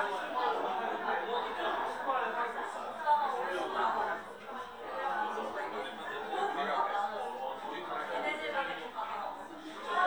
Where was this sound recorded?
in a crowded indoor space